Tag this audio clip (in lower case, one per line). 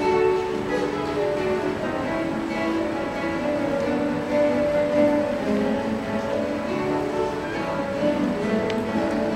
orchestra
acoustic guitar
music
musical instrument
plucked string instrument
guitar
strum